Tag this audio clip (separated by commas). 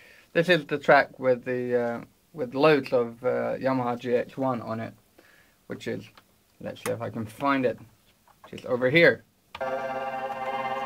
Speech, Music